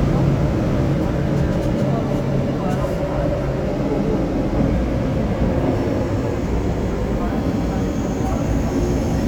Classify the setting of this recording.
subway train